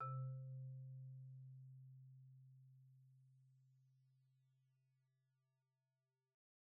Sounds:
percussion
xylophone
musical instrument
music
mallet percussion

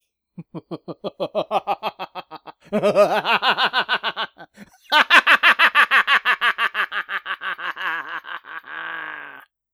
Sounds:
human voice
laughter

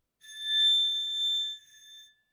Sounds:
glass

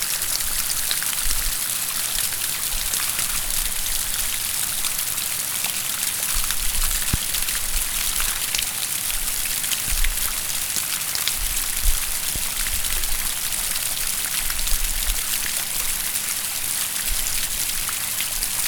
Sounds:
water
rain

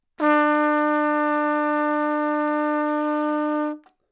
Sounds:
trumpet
musical instrument
brass instrument
music

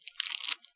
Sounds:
crumpling

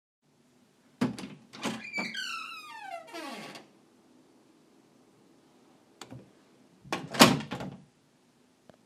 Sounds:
squeak

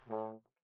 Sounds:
brass instrument
musical instrument
music

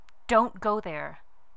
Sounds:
speech
human voice
female speech

